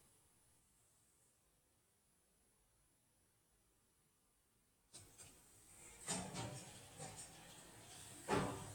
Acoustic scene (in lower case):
elevator